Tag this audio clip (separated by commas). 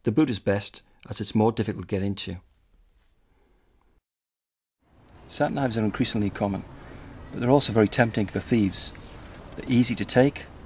Speech